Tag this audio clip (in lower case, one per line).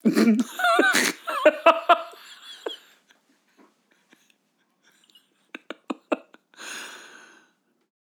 human voice
laughter